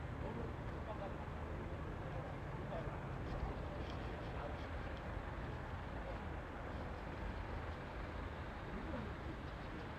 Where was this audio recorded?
in a residential area